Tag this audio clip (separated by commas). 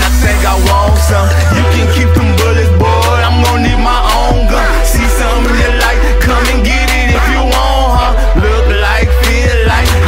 Music